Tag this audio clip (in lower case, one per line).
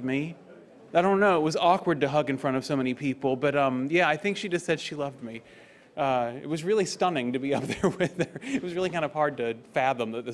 speech